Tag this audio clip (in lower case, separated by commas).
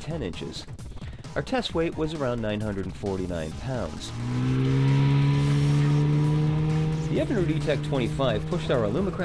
speech, accelerating, medium engine (mid frequency), music